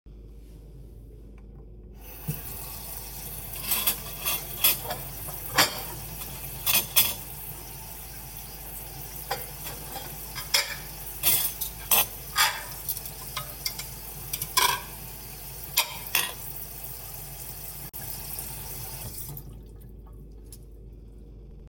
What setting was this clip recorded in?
kitchen